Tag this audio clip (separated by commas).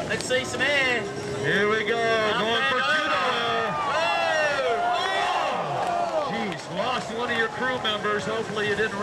Speech